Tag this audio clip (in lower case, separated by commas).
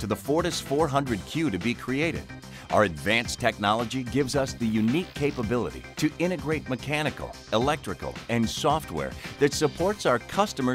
music, speech